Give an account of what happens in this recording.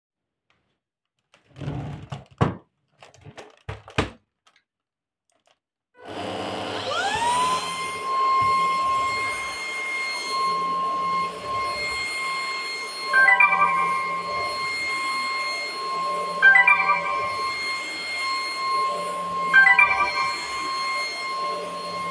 I took the vaccum cleaner, turned it on and started cleaning. I recieved three phone notofications in process.